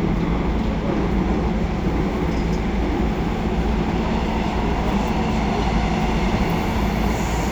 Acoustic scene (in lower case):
subway train